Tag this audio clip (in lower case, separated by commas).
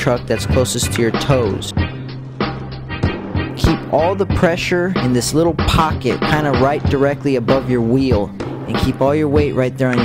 speech, music